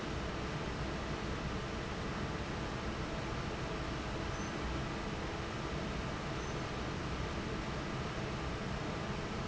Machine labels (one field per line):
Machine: fan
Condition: normal